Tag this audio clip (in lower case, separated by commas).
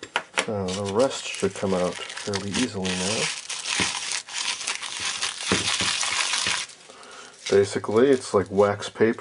speech, inside a small room